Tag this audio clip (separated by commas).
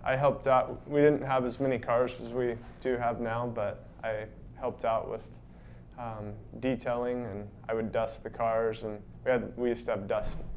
Speech